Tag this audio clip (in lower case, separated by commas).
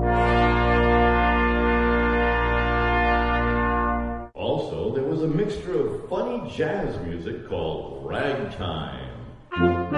brass instrument, musical instrument, trumpet, music, speech